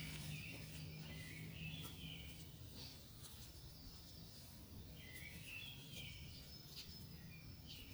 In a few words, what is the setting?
park